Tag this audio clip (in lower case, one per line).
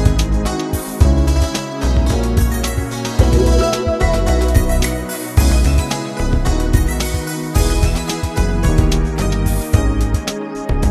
music